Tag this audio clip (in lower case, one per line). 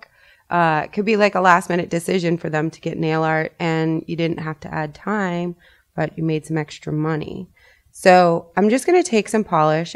speech